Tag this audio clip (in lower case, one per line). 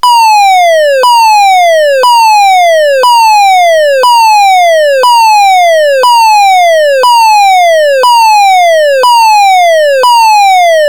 alarm